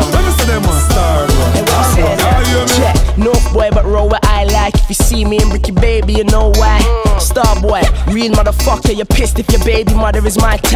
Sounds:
music

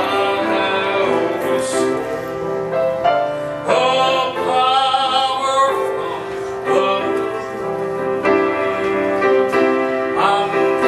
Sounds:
music
male singing

